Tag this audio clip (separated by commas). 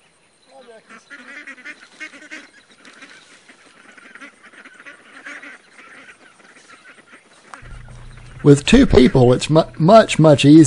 Goose, Honk, Fowl